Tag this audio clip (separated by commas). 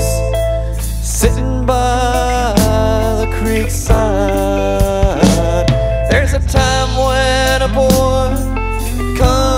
Music, Bluegrass, Country